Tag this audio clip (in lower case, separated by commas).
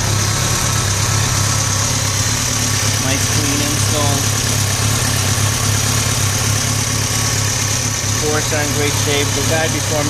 speech, vehicle, vibration, motorcycle